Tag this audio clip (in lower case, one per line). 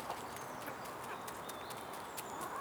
fowl
livestock
chicken
animal